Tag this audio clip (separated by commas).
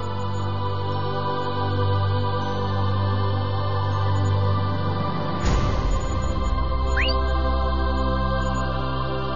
Music, New-age music